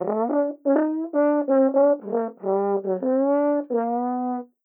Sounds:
Musical instrument, Brass instrument, Music

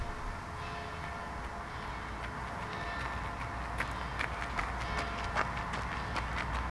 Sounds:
Walk, Run, Bell

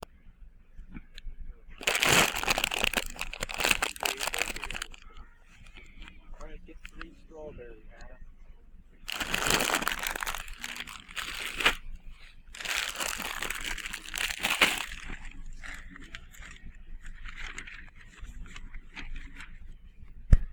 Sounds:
Crumpling

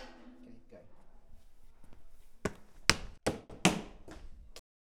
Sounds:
Walk

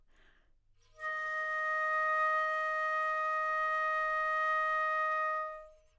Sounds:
Musical instrument, Music, woodwind instrument

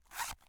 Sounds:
Domestic sounds, Zipper (clothing)

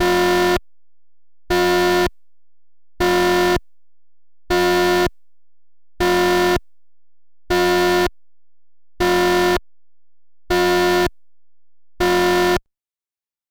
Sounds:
Alarm

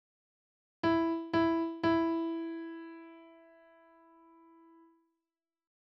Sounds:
Piano, Music, Musical instrument, Keyboard (musical)

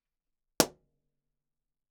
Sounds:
Explosion

